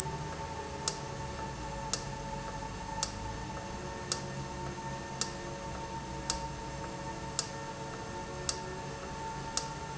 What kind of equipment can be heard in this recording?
valve